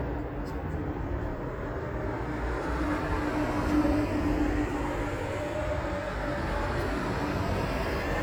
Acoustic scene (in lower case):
street